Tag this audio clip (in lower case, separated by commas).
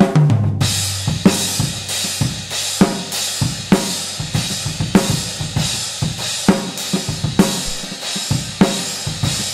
drum kit, snare drum, percussion, drum, bass drum, rimshot